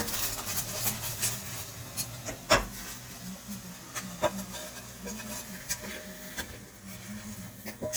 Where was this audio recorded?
in a kitchen